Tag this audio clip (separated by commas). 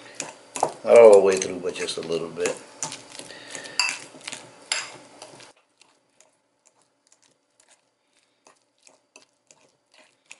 inside a small room, Speech